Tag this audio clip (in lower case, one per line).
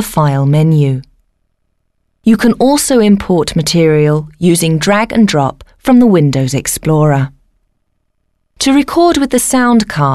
speech